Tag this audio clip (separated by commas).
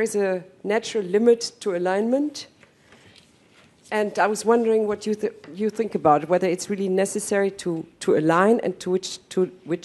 Speech, monologue, Female speech